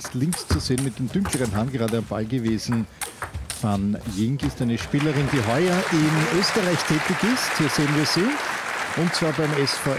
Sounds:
Speech

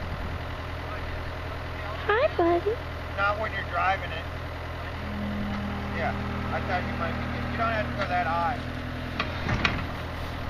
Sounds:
Speech

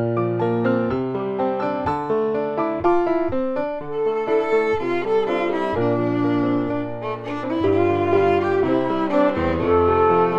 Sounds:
Music, Jazz

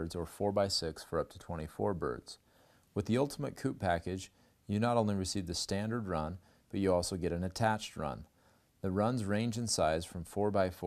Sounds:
Speech

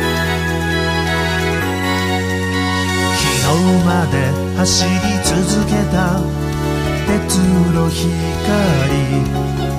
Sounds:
Music

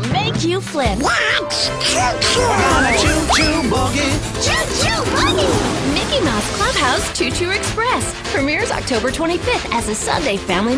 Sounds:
Speech, Music

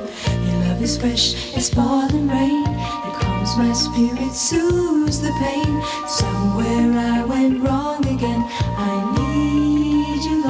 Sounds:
Music

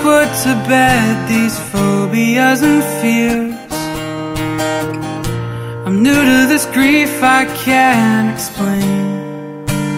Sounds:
Music

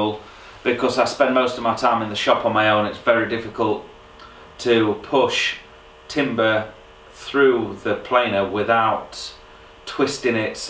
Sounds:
planing timber

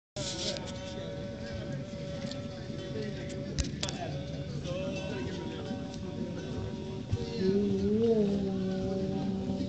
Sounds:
playing ukulele

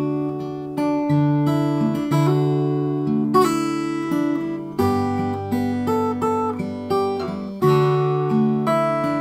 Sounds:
Musical instrument, Guitar, Plucked string instrument, Music

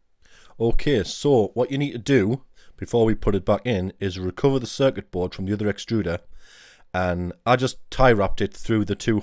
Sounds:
Speech

